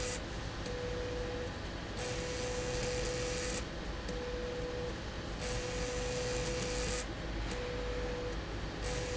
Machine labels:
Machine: slide rail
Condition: abnormal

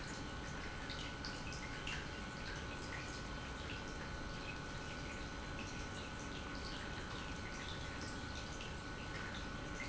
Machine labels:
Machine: pump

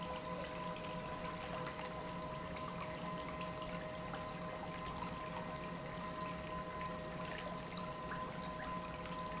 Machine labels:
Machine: pump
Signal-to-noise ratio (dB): 0 dB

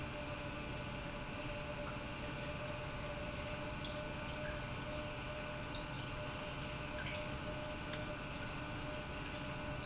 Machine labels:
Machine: pump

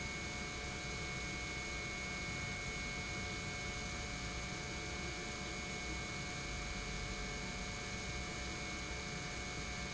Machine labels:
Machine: pump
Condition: normal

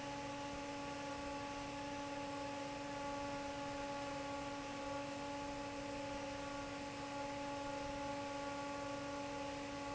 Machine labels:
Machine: fan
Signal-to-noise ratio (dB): 6 dB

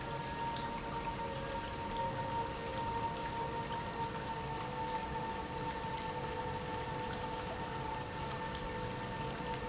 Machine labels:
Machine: pump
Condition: normal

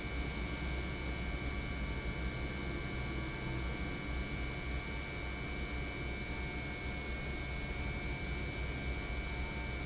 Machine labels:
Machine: pump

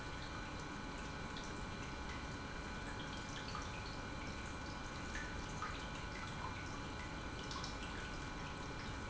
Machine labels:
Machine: pump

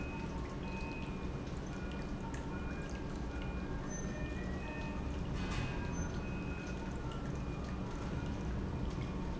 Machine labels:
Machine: pump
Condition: normal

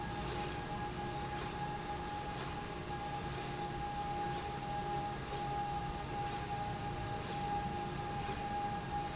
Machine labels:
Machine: slide rail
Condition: normal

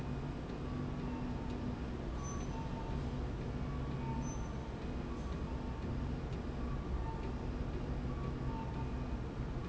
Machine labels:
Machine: slide rail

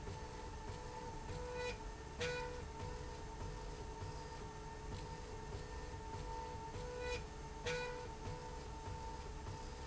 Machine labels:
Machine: slide rail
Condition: normal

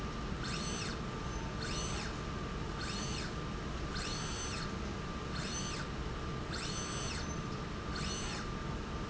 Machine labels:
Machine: slide rail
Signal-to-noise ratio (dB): -6 dB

